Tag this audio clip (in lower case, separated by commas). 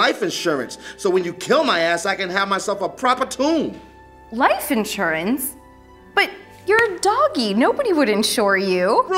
speech, music